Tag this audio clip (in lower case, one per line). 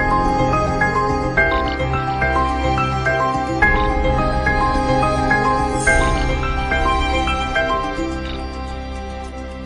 music